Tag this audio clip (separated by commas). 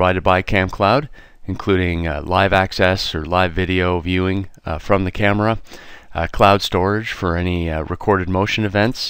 Speech